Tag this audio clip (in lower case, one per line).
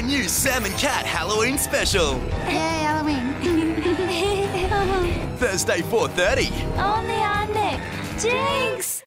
speech
music